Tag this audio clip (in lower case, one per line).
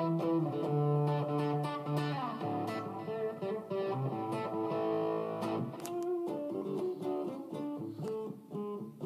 musical instrument
electric guitar
guitar
plucked string instrument
music
strum